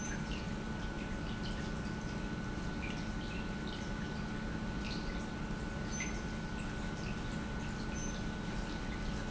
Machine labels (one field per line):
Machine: pump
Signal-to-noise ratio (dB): -6 dB